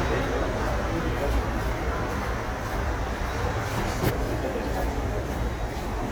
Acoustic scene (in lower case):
subway station